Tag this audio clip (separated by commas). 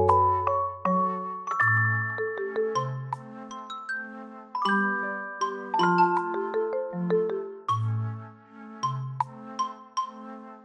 Mallet percussion, Glockenspiel, Marimba